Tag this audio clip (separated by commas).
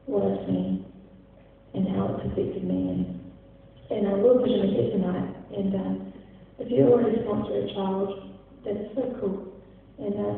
monologue, Female speech, Speech